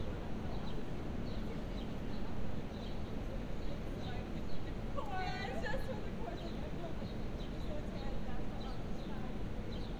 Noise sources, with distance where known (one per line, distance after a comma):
unidentified human voice